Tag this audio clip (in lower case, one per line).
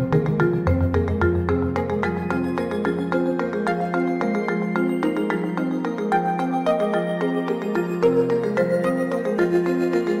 music